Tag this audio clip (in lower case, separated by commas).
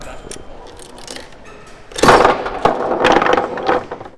domestic sounds, coin (dropping)